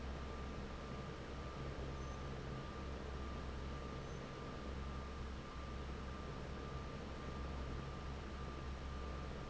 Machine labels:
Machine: fan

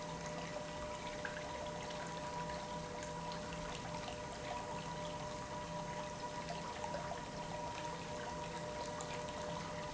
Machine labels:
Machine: pump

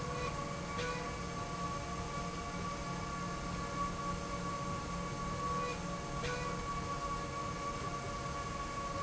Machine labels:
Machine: slide rail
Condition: normal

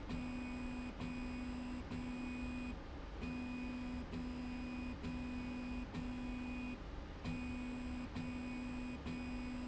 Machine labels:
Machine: slide rail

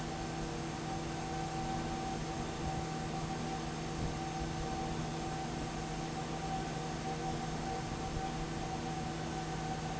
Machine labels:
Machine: fan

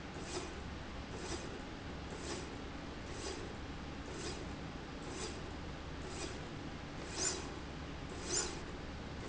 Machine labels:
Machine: slide rail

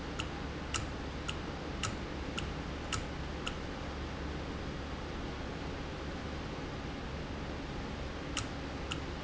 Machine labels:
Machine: valve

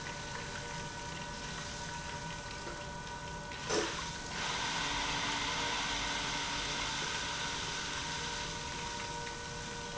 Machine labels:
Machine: pump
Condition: abnormal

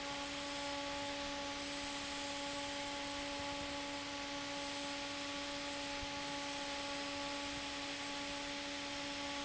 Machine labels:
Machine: fan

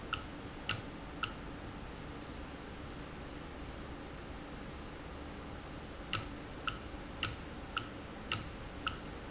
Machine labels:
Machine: valve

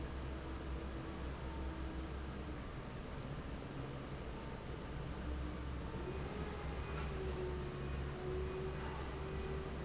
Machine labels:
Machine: fan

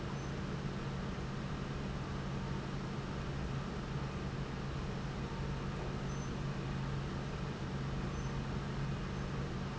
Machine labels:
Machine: pump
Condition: normal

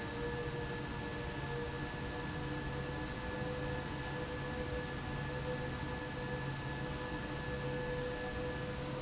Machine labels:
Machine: fan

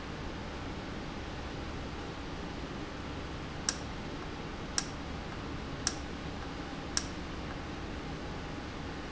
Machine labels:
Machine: valve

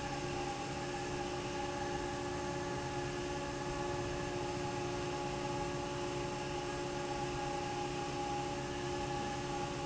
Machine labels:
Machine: fan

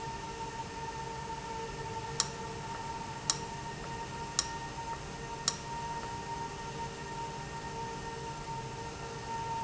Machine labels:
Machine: valve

